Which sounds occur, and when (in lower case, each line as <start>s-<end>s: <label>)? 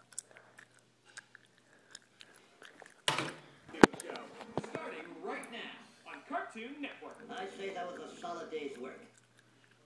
0.0s-0.4s: chewing
0.0s-9.8s: mechanisms
0.3s-0.7s: breathing
0.5s-0.8s: chewing
1.0s-1.6s: chewing
1.6s-1.9s: breathing
1.9s-2.0s: chewing
2.1s-2.9s: breathing
2.2s-2.2s: chewing
2.6s-3.0s: chewing
3.0s-3.3s: thump
3.4s-3.6s: breathing
3.6s-5.0s: music
3.6s-9.2s: television
3.7s-4.2s: man speaking
3.8s-3.9s: generic impact sounds
4.0s-4.2s: generic impact sounds
4.3s-4.4s: generic impact sounds
4.5s-4.6s: tap
4.6s-5.7s: man speaking
4.7s-4.8s: tap
5.4s-5.5s: generic impact sounds
5.8s-6.2s: music
6.0s-7.1s: man speaking
6.1s-6.2s: generic impact sounds
6.8s-6.9s: chewing
7.0s-7.1s: chewing
7.3s-9.1s: man speaking
7.3s-9.1s: music
7.3s-7.4s: chewing
9.1s-9.4s: chewing
9.3s-9.8s: breathing
9.6s-9.8s: chewing